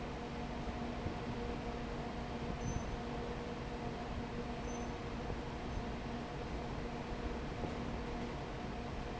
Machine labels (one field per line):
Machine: fan